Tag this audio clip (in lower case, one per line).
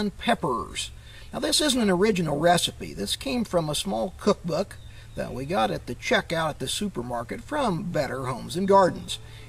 speech